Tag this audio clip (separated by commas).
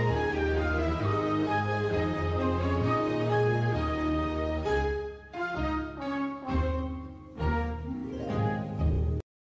Music